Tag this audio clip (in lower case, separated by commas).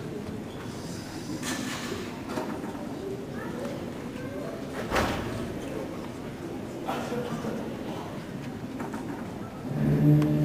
speech